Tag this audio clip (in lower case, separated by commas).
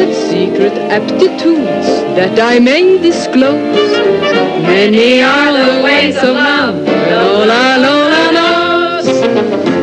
music, speech